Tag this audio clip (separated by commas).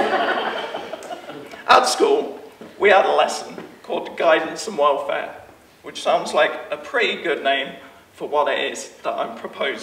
Speech